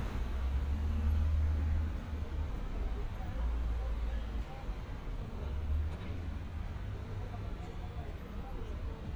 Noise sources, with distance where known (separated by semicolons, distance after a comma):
medium-sounding engine, near; person or small group talking